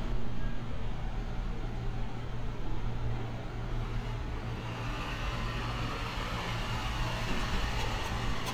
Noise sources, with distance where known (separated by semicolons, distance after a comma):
large-sounding engine, near